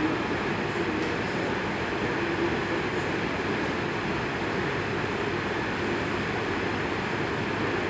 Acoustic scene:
subway station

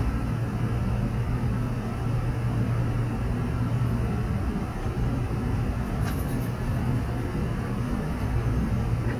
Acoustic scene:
subway train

